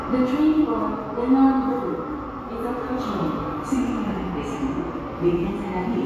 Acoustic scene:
subway station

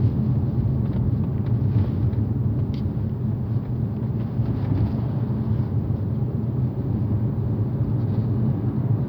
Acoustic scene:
car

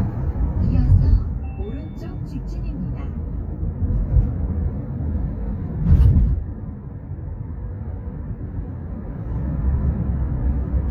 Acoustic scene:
car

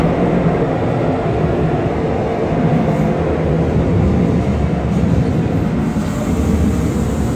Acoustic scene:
subway train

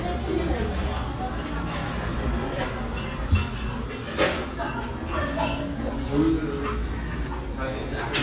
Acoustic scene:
cafe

